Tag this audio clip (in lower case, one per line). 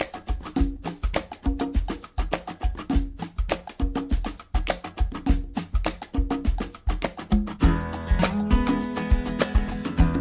wood block
music